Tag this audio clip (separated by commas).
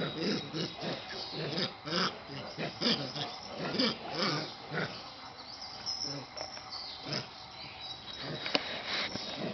Animal, pets